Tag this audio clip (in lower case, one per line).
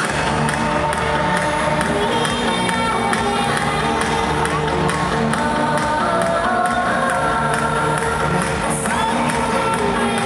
music
speech